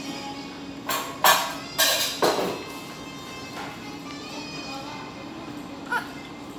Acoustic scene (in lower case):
restaurant